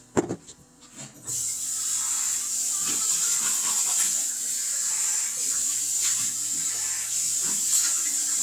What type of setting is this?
restroom